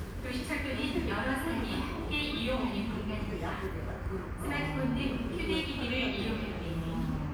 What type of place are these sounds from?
subway station